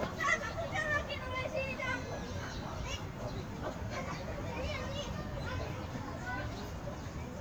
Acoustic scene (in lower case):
park